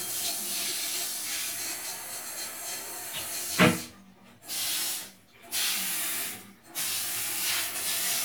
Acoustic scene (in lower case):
restroom